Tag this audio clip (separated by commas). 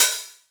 Music, Hi-hat, Cymbal, Musical instrument, Percussion